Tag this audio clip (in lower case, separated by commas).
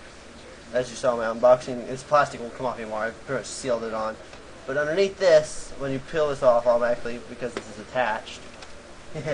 speech